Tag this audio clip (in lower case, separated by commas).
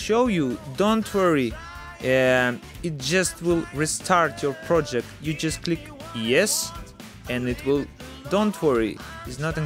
music, speech